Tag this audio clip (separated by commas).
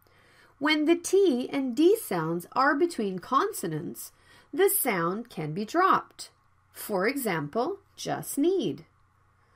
Speech